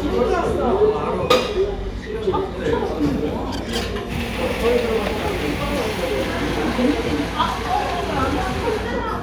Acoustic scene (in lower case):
cafe